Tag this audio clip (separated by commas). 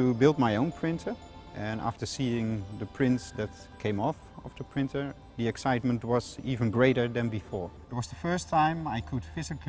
Music, Speech